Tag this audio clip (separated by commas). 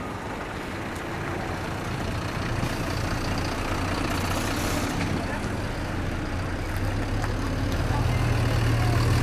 Speech, Bus, Vehicle